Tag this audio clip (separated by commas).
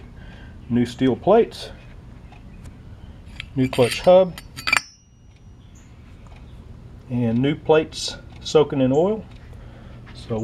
Speech